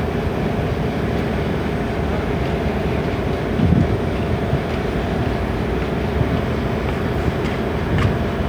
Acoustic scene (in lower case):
street